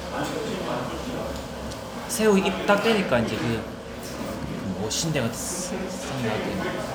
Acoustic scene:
restaurant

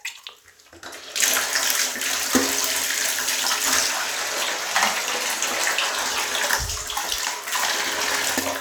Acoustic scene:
restroom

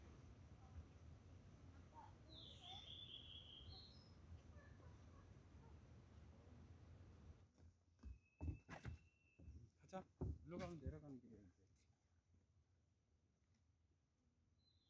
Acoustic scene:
park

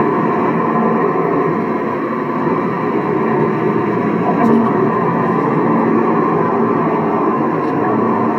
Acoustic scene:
car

